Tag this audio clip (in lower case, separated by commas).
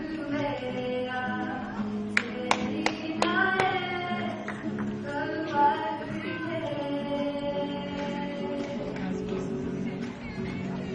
music, female singing